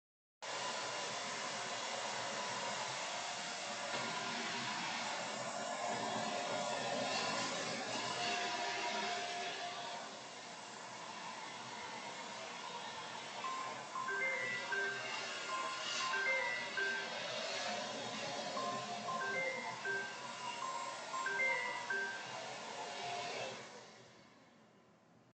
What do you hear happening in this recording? While I was vacuuming someone called me. I stopped vacuuming and picked up.